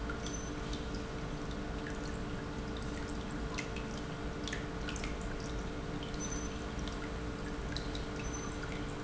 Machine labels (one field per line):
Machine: pump